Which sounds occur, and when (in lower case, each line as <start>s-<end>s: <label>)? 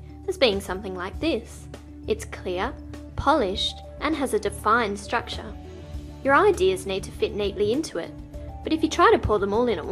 0.0s-9.9s: music
0.2s-1.4s: female speech
2.0s-2.7s: female speech
3.1s-3.8s: female speech
4.0s-5.4s: female speech
6.2s-8.1s: female speech
8.7s-9.9s: female speech